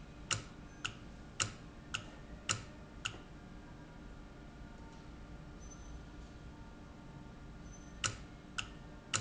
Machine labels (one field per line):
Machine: valve